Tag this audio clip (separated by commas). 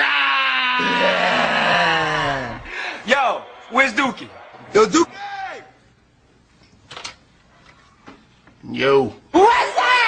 Speech